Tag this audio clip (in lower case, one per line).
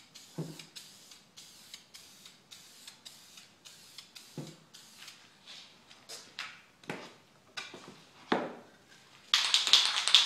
inside a small room